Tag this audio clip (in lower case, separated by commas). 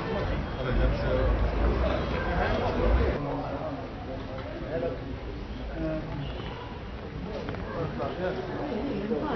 speech